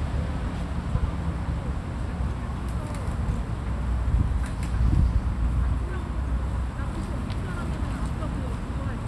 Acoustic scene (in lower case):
residential area